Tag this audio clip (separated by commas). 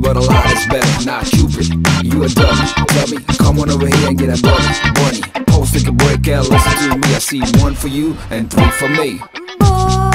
Music